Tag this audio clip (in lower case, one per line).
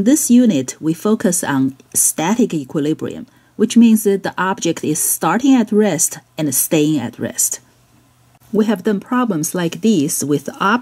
speech